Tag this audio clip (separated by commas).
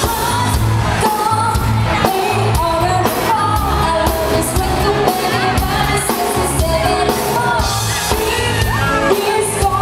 Dance music, Music